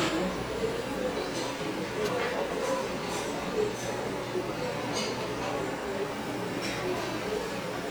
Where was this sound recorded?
in a restaurant